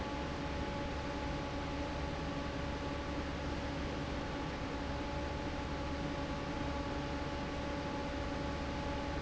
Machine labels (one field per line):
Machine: fan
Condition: normal